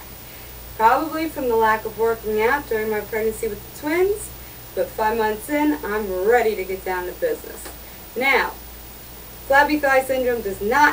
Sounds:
speech

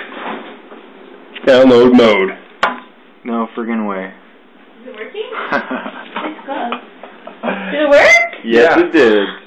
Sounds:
speech
inside a small room

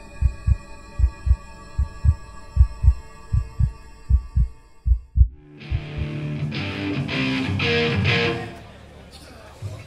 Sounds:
heavy metal
punk rock
music
speech
drum

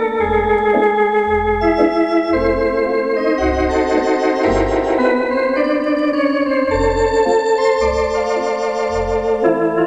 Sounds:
hammond organ
organ

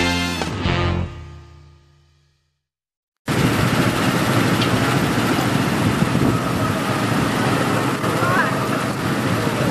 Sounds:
car
race car
speech
outside, urban or man-made
vehicle
music

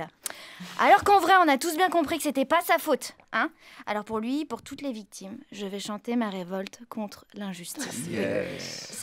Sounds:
speech

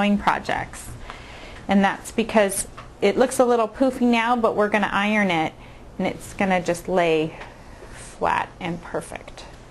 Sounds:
speech

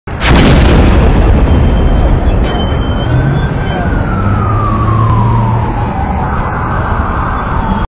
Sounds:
explosion

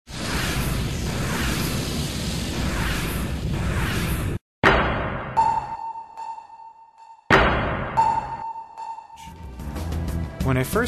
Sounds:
music

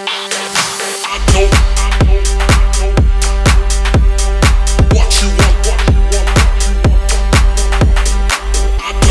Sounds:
music

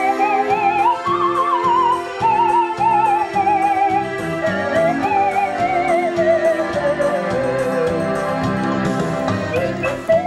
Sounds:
music
musical instrument

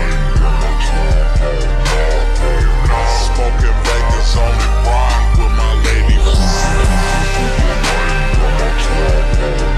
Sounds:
pop music
music

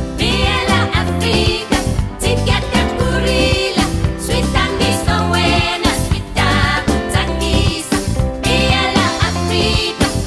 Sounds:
music

